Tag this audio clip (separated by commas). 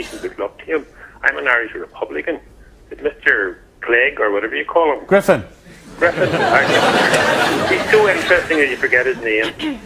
Speech